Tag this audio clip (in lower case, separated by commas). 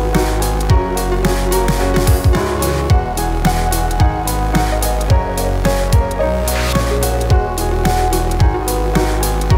music